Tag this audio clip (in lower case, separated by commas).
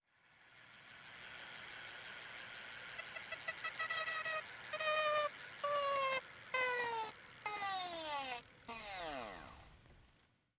vehicle, bicycle